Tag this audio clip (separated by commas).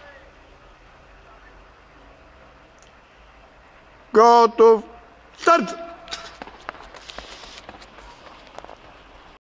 Run, outside, urban or man-made, Speech